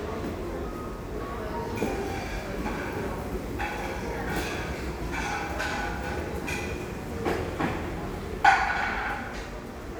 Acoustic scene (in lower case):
crowded indoor space